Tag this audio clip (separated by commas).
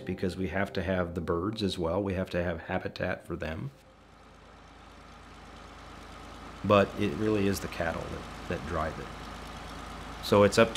Music, Speech